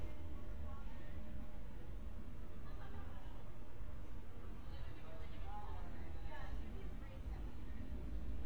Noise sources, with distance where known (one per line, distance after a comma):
person or small group talking, far